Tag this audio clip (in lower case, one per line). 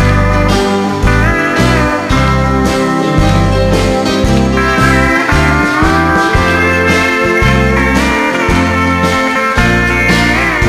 music